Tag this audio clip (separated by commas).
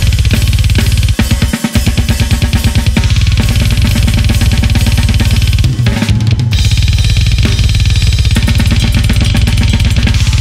playing bass drum